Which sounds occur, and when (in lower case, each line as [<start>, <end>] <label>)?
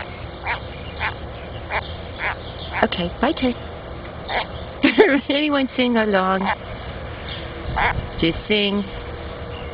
[0.00, 0.34] chirp
[0.00, 9.73] wind
[0.38, 0.55] frog
[0.63, 0.92] chirp
[0.96, 1.11] frog
[1.15, 1.55] chirp
[1.66, 1.79] frog
[1.79, 1.96] chirp
[2.10, 2.35] chirp
[2.15, 2.31] frog
[2.44, 2.76] chirp
[2.69, 3.05] female speech
[2.71, 2.85] frog
[3.19, 3.51] female speech
[4.22, 4.69] chirp
[4.24, 4.44] frog
[4.78, 5.22] giggle
[5.19, 6.55] female speech
[6.40, 6.60] frog
[6.56, 6.84] chirp
[7.26, 7.47] chirp
[7.75, 7.95] frog
[8.01, 9.01] chirp
[8.20, 8.33] female speech
[8.49, 8.85] female speech
[9.46, 9.67] chirp